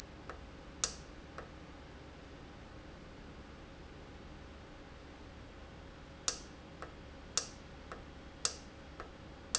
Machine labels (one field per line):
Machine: valve